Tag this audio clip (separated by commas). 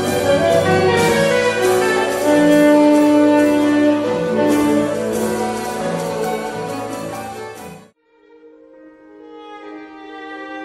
Orchestra